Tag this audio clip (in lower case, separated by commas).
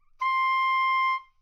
musical instrument, music, wind instrument